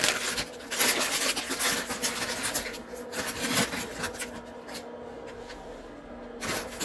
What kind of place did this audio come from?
kitchen